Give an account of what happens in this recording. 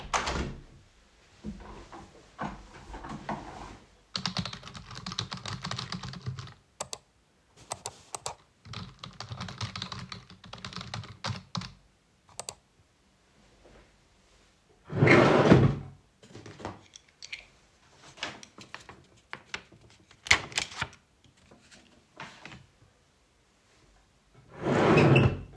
I opened the window and rolled my office chair back to the desk. I typed on my computer, occasionally clicking the mouse. I then opened a drawer, grabbed a stapler, stapled some documents together, placed it back and closed the drawer.